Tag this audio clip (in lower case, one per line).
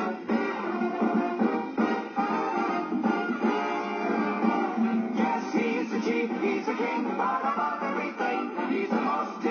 music